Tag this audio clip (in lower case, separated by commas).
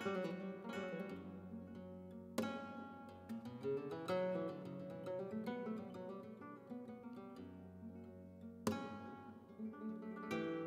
music, musical instrument, plucked string instrument, guitar